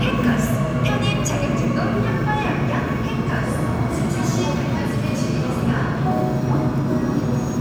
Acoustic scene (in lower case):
subway station